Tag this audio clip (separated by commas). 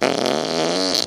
Fart